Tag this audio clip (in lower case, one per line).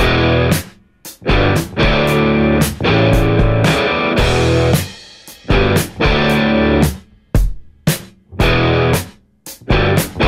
music